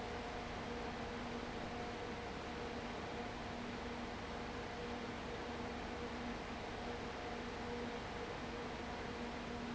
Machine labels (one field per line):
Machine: fan